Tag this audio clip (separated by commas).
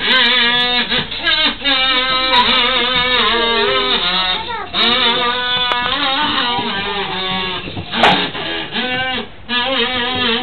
Speech